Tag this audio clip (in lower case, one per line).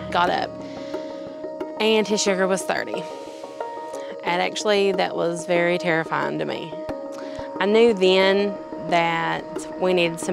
music
speech